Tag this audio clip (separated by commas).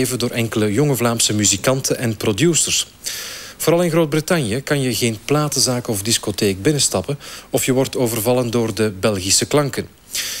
Speech